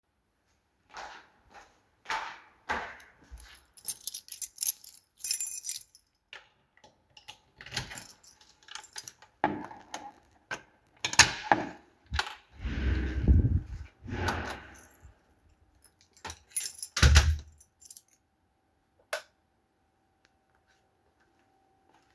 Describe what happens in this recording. I walked from outside toward the apartment door. I found my key and unlocked the door. I entered the apartment and closed the door behind me. Then I turned on the light.